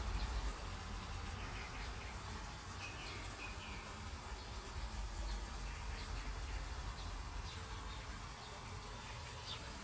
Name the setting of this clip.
park